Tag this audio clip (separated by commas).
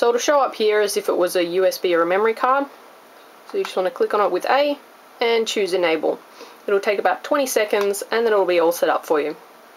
Speech